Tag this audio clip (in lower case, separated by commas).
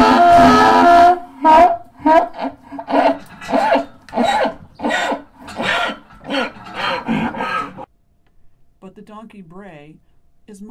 ass braying